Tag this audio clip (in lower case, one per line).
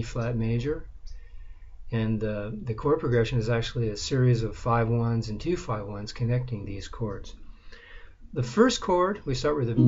speech
music
guitar
musical instrument
plucked string instrument
strum